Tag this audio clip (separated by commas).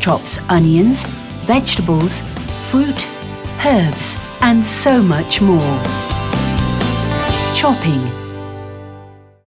Speech, Music